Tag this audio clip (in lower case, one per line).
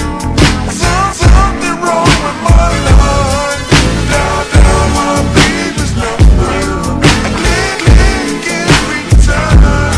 music